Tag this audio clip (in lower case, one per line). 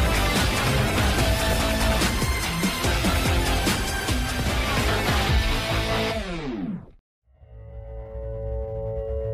music